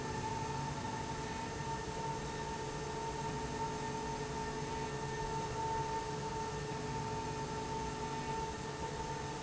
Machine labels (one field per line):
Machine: slide rail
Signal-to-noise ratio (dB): -6 dB